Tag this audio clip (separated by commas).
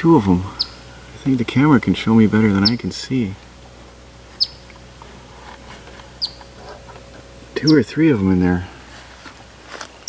Speech, Chirp, outside, rural or natural